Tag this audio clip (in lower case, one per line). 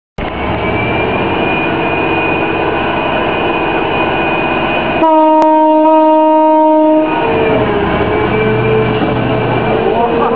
vehicle
outside, urban or man-made